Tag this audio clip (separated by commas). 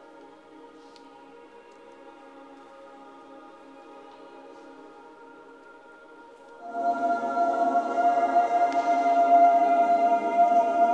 Music, Choir